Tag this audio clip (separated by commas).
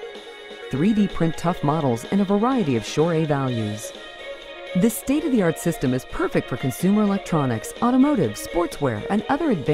Music, Speech